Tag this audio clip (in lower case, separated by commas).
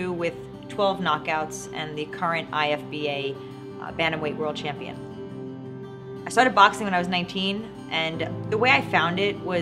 music, speech